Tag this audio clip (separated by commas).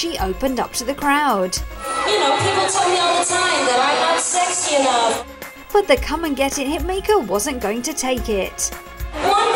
Music, Speech